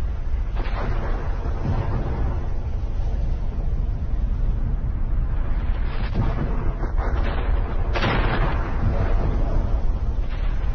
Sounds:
volcano explosion

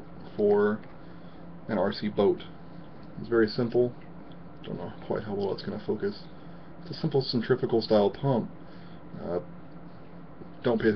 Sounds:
Speech

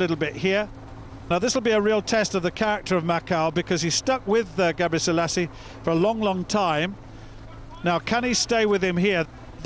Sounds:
outside, urban or man-made, Speech

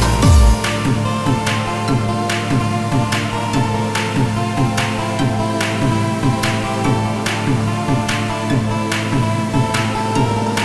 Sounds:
Music, Electronic music, Techno

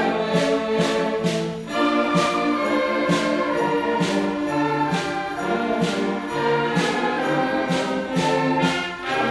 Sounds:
Jingle bell

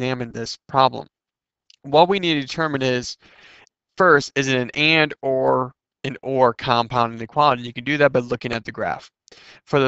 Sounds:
Speech

